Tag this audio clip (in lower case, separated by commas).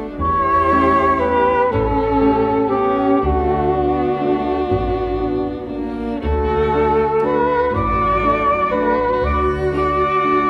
music, string section